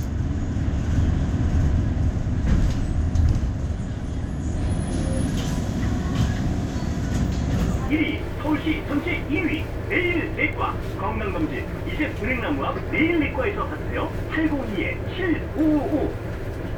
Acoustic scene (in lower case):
bus